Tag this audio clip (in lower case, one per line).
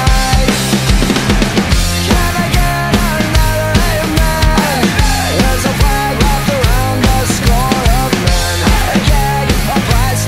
playing snare drum